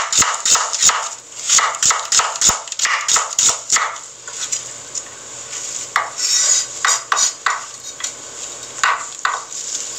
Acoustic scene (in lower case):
kitchen